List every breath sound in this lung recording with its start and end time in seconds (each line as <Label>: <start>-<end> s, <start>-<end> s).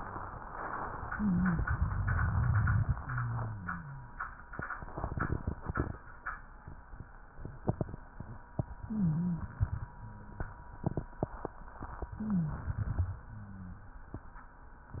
Inhalation: 8.75-9.92 s, 12.07-13.11 s
Wheeze: 8.81-9.46 s, 12.13-12.65 s